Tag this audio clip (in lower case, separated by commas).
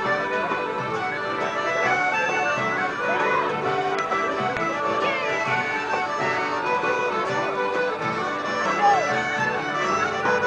music, traditional music